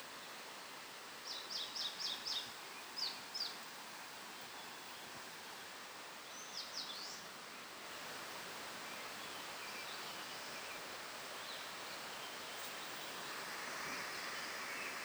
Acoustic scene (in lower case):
park